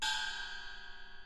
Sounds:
gong
musical instrument
music
percussion

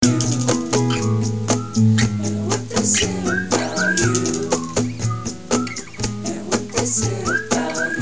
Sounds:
music
acoustic guitar
plucked string instrument
guitar
human voice
musical instrument

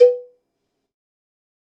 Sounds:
bell
cowbell

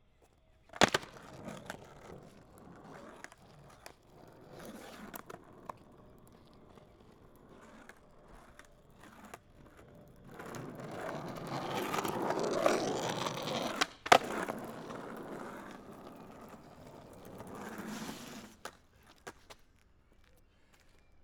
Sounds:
vehicle
skateboard

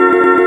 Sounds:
musical instrument
piano
keyboard (musical)
music

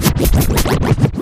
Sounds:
music
musical instrument
scratching (performance technique)

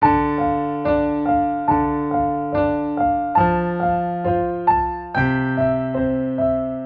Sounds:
keyboard (musical)
music
piano
musical instrument

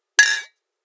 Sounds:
glass
clink

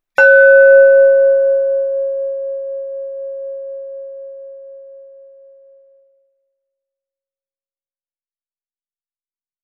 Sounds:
glass

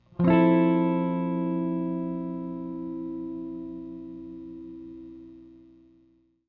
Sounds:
electric guitar
guitar
music
musical instrument
plucked string instrument
strum

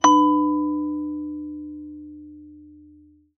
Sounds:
bell

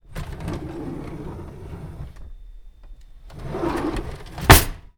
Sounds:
home sounds
drawer open or close

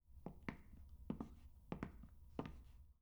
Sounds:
walk

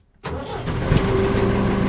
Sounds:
engine

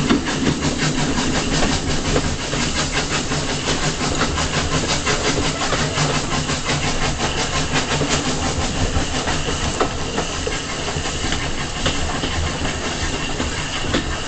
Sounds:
rail transport
train
vehicle

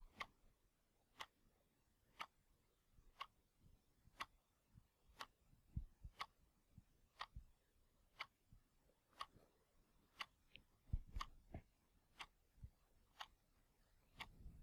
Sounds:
tick-tock
mechanisms
clock

